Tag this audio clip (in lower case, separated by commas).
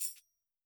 musical instrument, tambourine, percussion, music